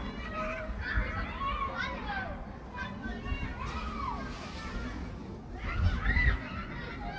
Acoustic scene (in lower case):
park